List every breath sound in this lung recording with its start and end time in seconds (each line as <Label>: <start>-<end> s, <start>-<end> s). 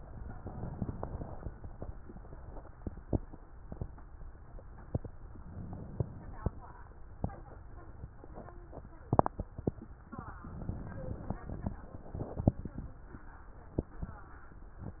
Inhalation: 0.25-1.50 s, 5.40-6.65 s, 10.42-11.67 s